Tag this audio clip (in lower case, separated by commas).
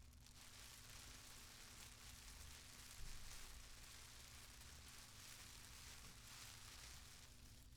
rain, water